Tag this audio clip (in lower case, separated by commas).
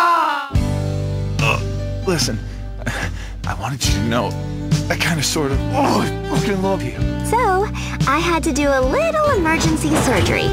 music, speech